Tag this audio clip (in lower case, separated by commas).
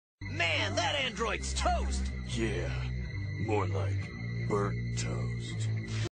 speech, music